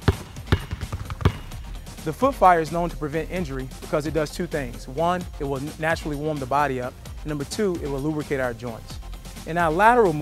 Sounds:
Music, Basketball bounce, Speech

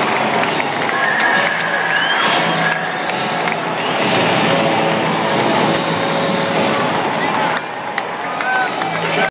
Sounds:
Speech

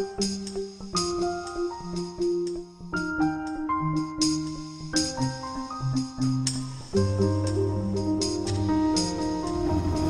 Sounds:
New-age music

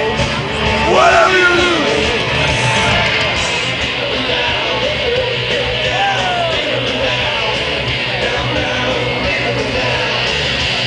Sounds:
Music, Speech

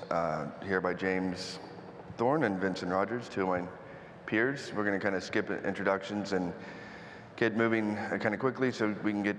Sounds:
Speech

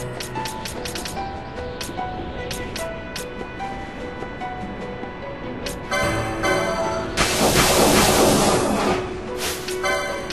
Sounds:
White noise

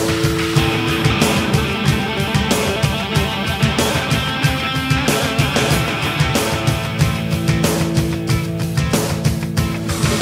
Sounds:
Punk rock, Music

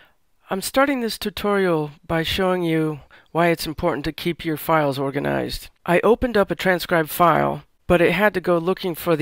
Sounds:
Speech

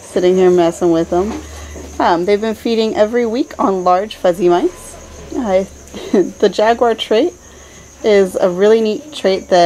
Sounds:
Speech

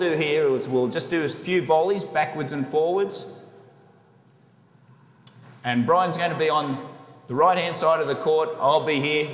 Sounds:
playing squash

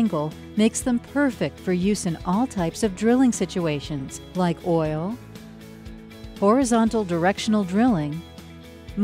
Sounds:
Speech, Music

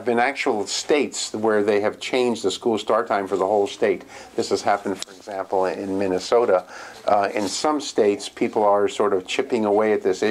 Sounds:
Speech

